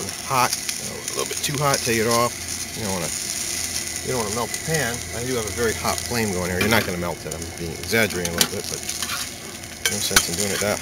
Grease sizzles as a man talks